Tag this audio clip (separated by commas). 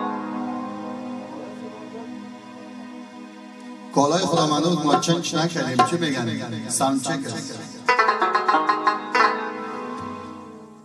Music, Speech